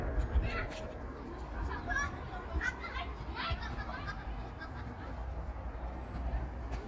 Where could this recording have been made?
in a park